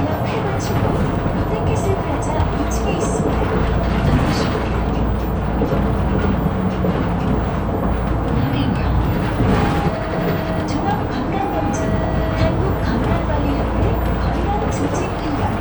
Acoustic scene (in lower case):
bus